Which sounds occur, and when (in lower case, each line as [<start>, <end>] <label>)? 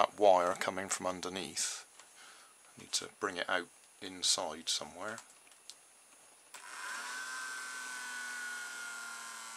[0.00, 0.05] generic impact sounds
[0.00, 1.79] male speech
[0.00, 9.55] mechanisms
[1.94, 2.02] tick
[2.14, 2.48] breathing
[2.59, 2.66] tick
[2.73, 3.67] male speech
[2.78, 3.04] generic impact sounds
[3.77, 3.86] clicking
[3.96, 5.20] male speech
[4.99, 5.72] generic impact sounds
[6.07, 6.31] generic impact sounds
[6.50, 6.67] generic impact sounds
[6.82, 7.05] generic impact sounds